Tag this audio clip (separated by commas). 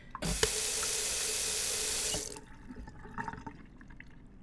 Domestic sounds, Sink (filling or washing), Water tap